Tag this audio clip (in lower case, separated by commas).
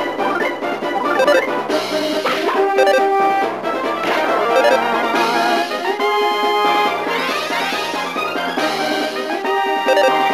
music